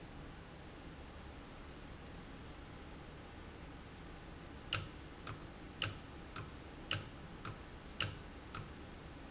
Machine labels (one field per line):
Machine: valve